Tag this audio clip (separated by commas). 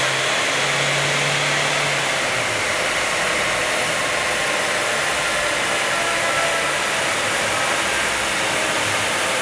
Car, Medium engine (mid frequency), vroom, Vehicle